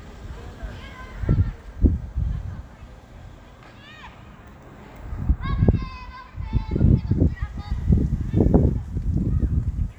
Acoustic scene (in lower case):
park